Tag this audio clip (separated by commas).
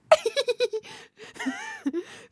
Laughter, Human voice